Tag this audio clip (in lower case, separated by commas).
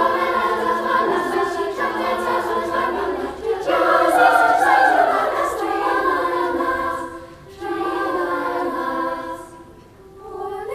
choir